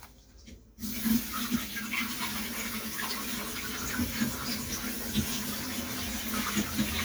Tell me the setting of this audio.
kitchen